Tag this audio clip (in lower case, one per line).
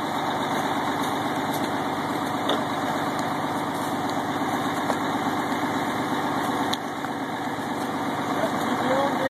truck
vehicle
speech